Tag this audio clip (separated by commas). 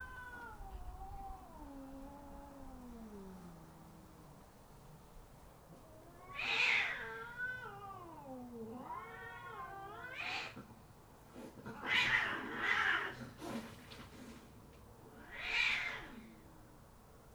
Animal, Domestic animals, Cat, Hiss